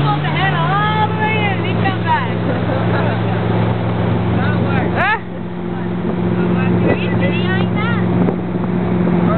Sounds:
speech
vehicle
speedboat

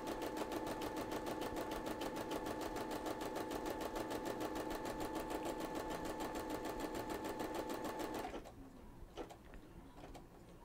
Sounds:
using sewing machines

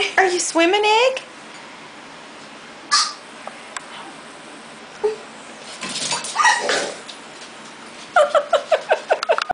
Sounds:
speech

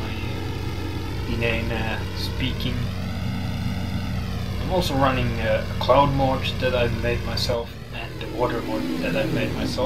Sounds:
vehicle
aircraft
speech
propeller
fixed-wing aircraft

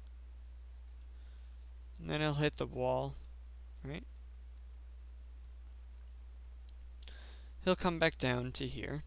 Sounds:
speech
clicking

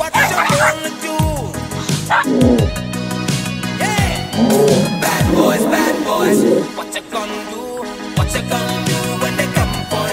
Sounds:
music
pets
bow-wow
yip
dog
animal

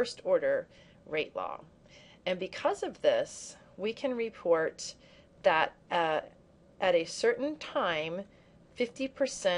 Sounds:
monologue

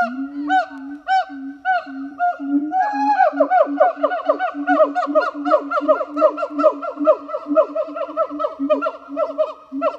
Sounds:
gibbon howling

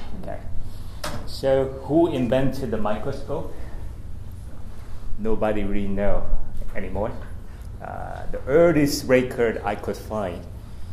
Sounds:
speech

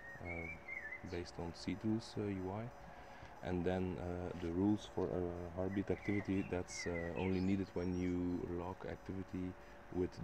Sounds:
speech

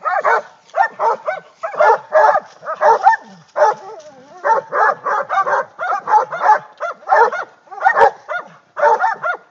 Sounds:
dog baying

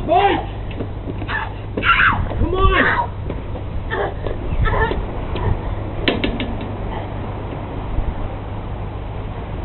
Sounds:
speech

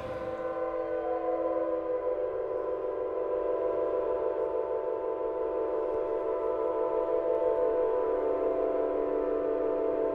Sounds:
inside a large room or hall

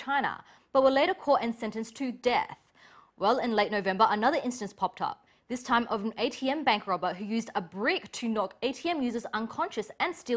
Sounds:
speech

